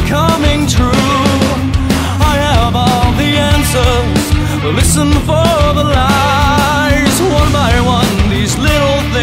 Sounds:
pop music, independent music, dance music, music, exciting music

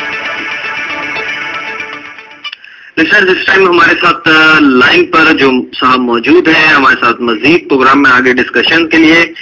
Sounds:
radio, music, speech

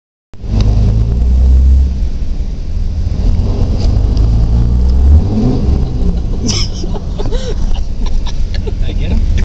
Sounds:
rumble, vehicle, wind noise (microphone), speech

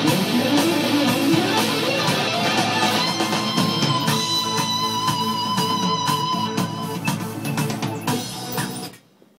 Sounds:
playing electric guitar, musical instrument, music, electric guitar, plucked string instrument

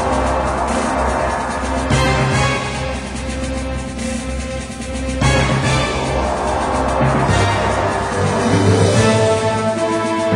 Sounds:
music

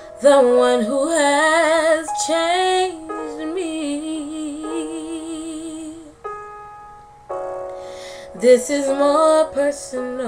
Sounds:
music, female singing

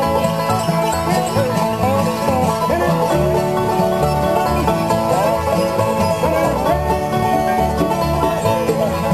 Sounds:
banjo, musical instrument, playing banjo, music

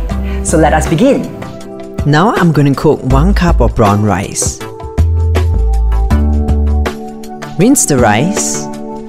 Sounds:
music, speech

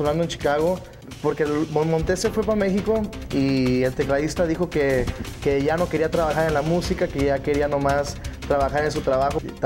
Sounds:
music, rhythm and blues, speech

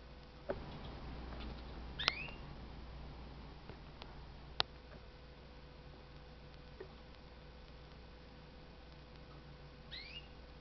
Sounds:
pets, bird

